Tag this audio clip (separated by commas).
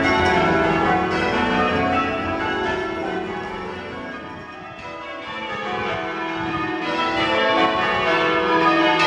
church bell ringing